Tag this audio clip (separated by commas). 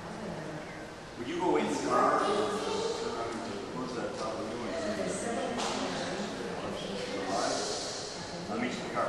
Speech